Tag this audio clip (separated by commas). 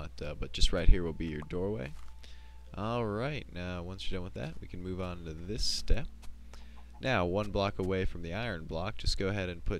Speech, Tap